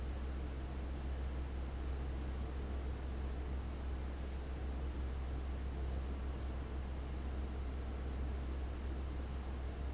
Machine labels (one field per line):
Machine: fan